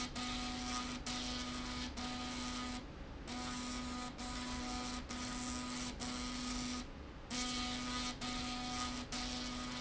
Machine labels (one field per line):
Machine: slide rail